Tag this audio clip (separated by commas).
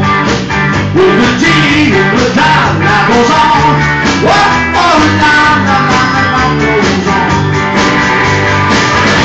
Music